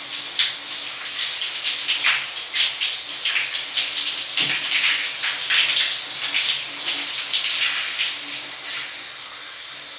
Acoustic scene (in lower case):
restroom